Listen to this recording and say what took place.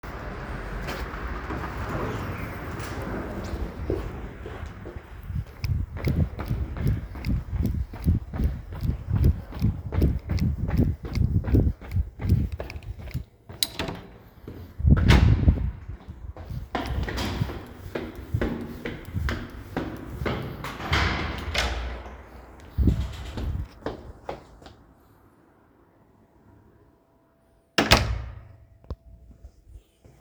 After finishing evening walk and running back to home. From door opened automacticall and enterted to buling throgh climbing via stairs.